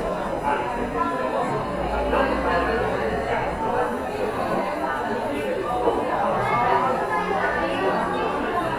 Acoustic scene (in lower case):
cafe